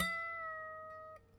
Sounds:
harp, musical instrument, music

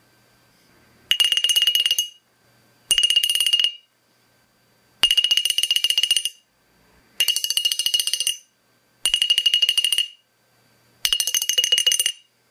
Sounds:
chink, glass

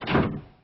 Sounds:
printer, mechanisms

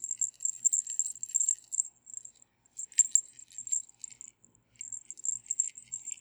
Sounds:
bell

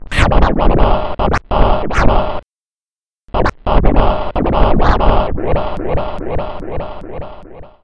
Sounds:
musical instrument, scratching (performance technique), music

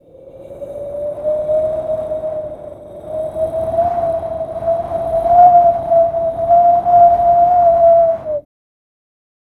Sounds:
wind

